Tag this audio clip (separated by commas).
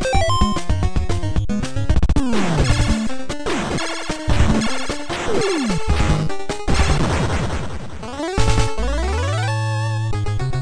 Music